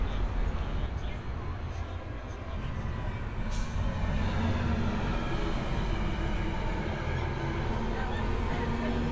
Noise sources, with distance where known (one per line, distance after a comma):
large-sounding engine, near
person or small group talking, near